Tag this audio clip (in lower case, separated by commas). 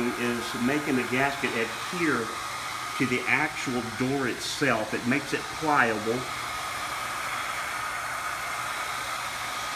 speech